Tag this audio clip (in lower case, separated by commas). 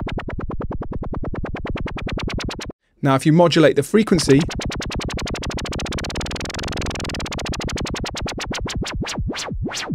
music, speech, synthesizer